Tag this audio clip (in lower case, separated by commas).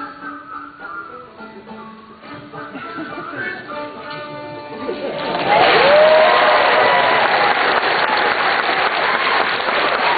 music, musical instrument, violin